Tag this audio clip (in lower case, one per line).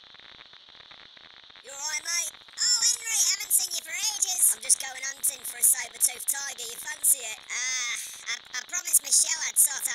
speech